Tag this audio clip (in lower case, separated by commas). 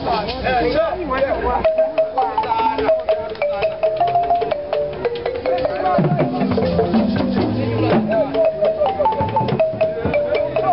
speech, music